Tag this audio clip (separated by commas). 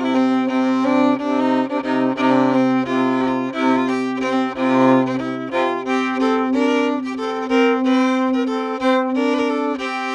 Music, Musical instrument, fiddle